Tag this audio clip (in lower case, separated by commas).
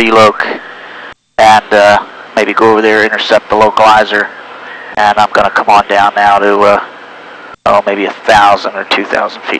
speech